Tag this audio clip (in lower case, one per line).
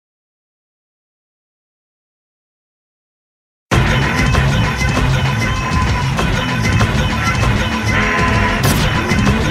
music